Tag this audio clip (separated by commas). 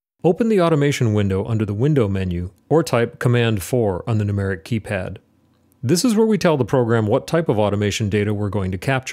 Speech